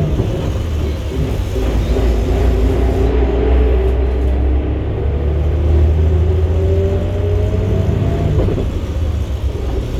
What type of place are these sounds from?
bus